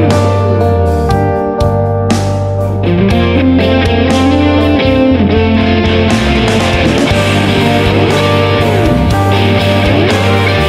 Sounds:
musical instrument
music
electric guitar
plucked string instrument
guitar

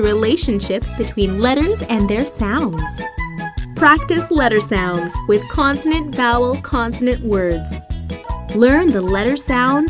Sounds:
speech
music

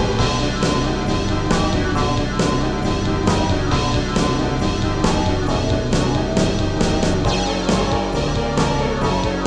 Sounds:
background music
music

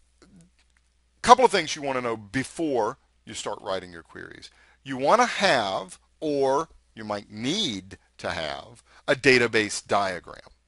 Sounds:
speech

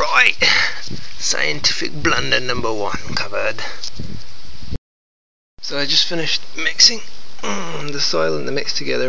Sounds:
speech

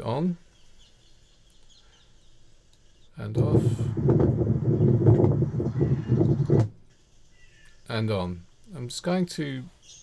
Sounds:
speech

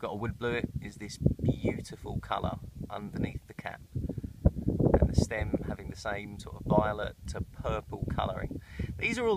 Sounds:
speech

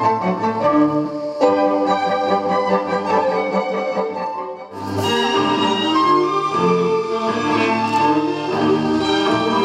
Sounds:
music
classical music

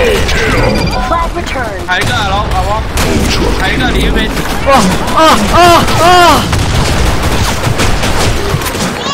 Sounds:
speech

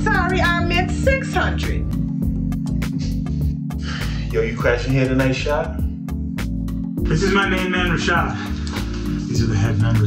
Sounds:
speech
music

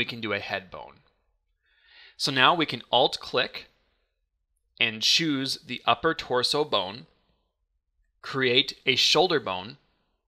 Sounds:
speech

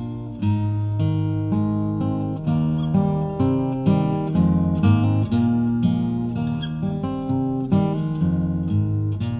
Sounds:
music
plucked string instrument
musical instrument
strum
guitar

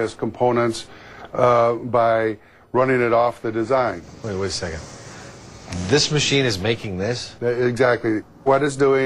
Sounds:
speech

